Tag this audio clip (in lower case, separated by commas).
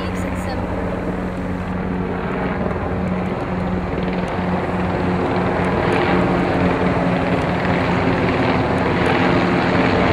helicopter, outside, rural or natural, speech